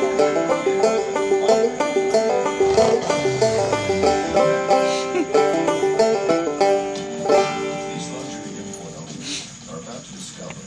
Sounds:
banjo

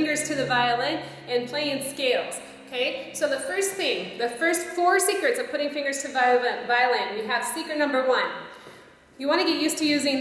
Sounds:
speech

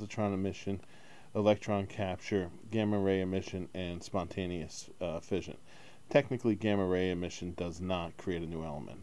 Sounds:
speech

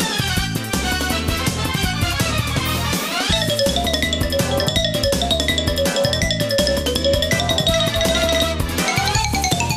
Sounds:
mallet percussion, glockenspiel, xylophone

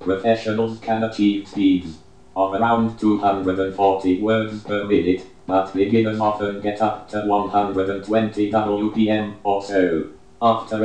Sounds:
speech, speech synthesizer

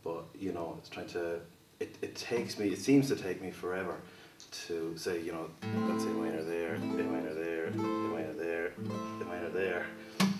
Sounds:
speech, guitar, strum, plucked string instrument, musical instrument, music

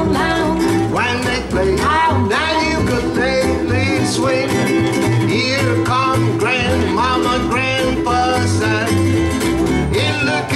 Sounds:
ukulele, guitar, singing, music, bluegrass

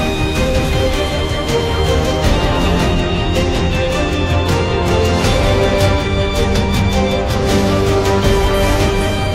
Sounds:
music

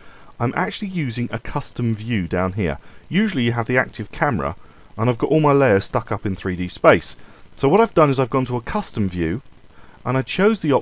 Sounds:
speech

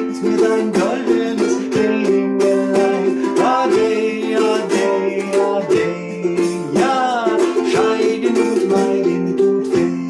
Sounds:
music, ukulele, inside a small room

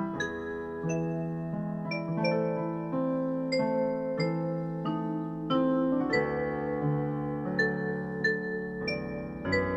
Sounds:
music, tender music

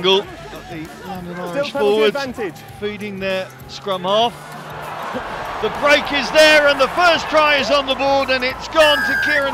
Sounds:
speech, music

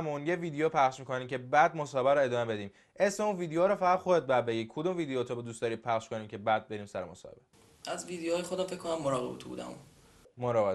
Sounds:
speech

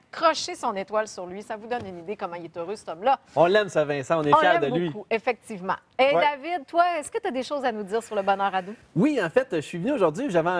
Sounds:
speech

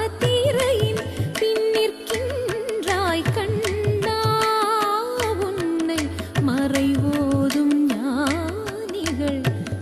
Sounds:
carnatic music, singing

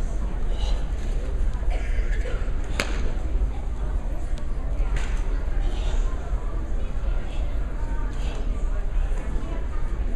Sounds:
speech

